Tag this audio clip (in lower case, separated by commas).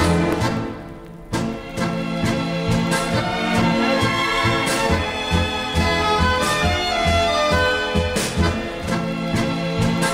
music